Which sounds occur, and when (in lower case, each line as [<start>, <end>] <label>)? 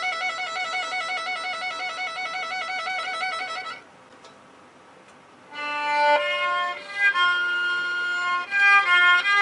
[0.00, 3.82] music
[0.00, 9.41] mechanisms
[4.05, 4.48] music
[4.98, 5.11] generic impact sounds
[5.50, 9.41] music